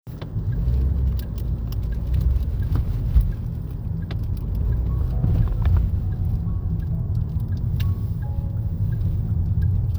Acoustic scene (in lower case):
car